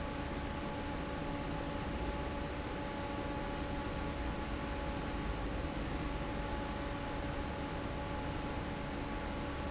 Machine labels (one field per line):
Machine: fan